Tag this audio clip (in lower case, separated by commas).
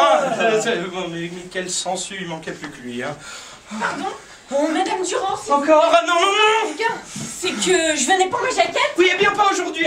speech